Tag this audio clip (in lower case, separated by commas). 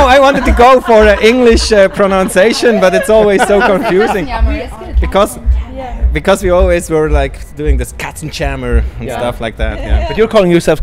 music, speech